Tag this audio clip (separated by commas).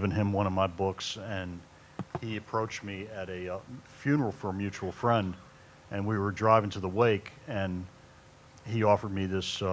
Speech